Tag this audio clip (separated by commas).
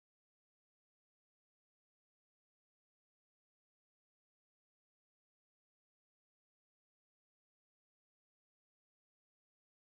Silence